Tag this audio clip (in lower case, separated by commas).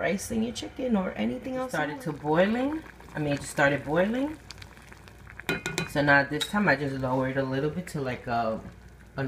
inside a small room, speech